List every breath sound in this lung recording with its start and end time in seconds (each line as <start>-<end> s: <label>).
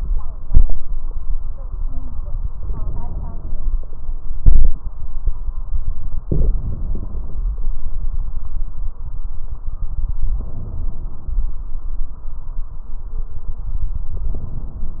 0.45-0.75 s: exhalation
2.57-4.07 s: inhalation
4.37-4.77 s: exhalation
6.27-7.43 s: inhalation
10.38-11.54 s: inhalation
14.15-15.00 s: inhalation